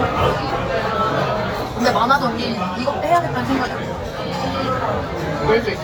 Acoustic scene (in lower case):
restaurant